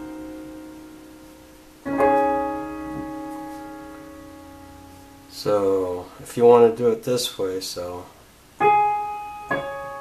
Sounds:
Music, Speech

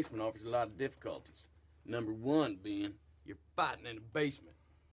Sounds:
Speech

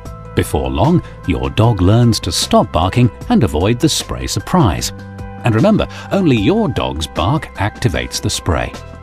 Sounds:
Music, Speech

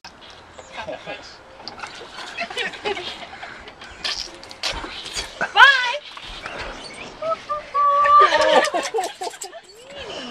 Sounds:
Speech

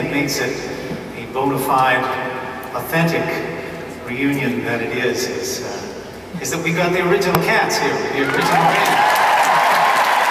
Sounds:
Speech

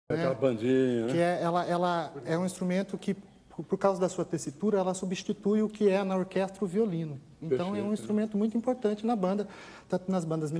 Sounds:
Speech

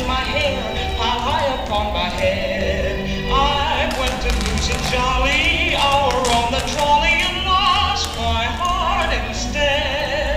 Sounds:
Music

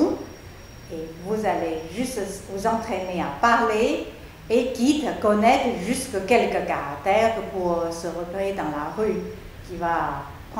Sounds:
Speech

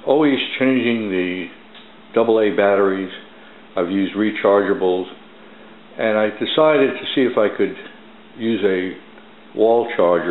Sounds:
Speech

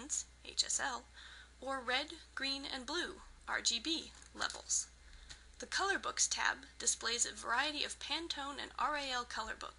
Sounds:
Speech

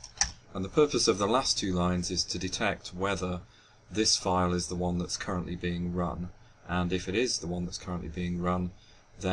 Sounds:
Speech

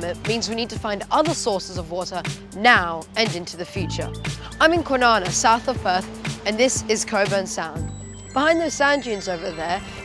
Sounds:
Music, Speech

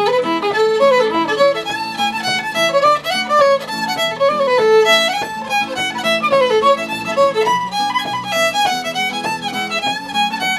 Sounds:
Musical instrument, Violin, Music

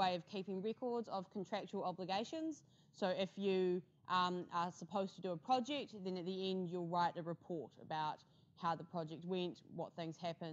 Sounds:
Speech

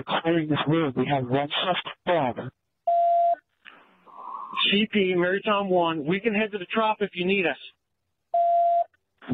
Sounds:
police radio chatter

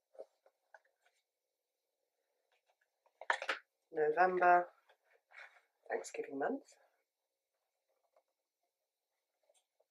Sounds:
inside a small room, Speech

